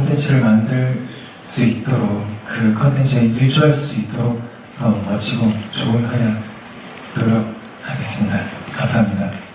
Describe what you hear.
Male speaking in Korean with clapping at the end